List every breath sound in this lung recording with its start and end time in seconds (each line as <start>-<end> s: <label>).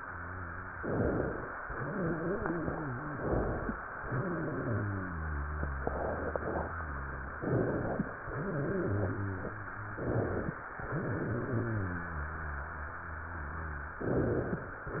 0.00-0.79 s: wheeze
0.80-1.59 s: inhalation
1.54-3.08 s: exhalation
1.54-3.08 s: wheeze
3.09-3.88 s: inhalation
3.95-7.32 s: exhalation
3.95-7.32 s: wheeze
7.35-8.13 s: inhalation
8.25-9.91 s: exhalation
8.25-9.91 s: wheeze
9.94-10.60 s: inhalation
10.86-13.94 s: exhalation
10.86-13.94 s: wheeze
13.99-14.66 s: inhalation
14.86-15.00 s: exhalation
14.86-15.00 s: wheeze